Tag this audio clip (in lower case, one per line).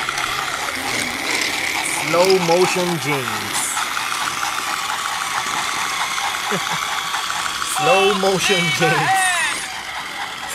train
speech